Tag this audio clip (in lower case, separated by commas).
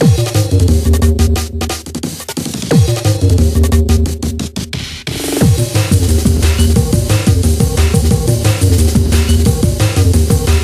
drum and bass